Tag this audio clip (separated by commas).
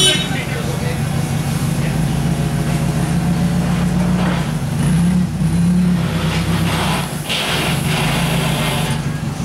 Speech